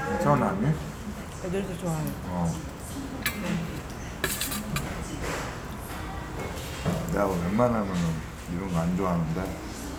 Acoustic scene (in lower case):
restaurant